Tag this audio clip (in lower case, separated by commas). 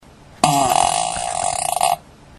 fart